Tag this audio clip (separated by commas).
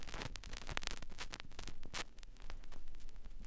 Crackle